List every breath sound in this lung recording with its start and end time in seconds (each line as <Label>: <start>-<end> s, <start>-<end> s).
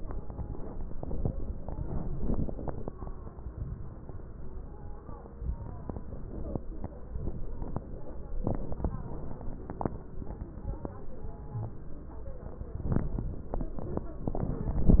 Inhalation: 3.45-4.06 s
Wheeze: 11.51-11.74 s
Crackles: 3.45-4.06 s